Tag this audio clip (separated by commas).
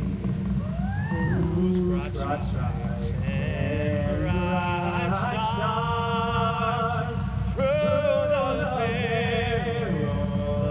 Male singing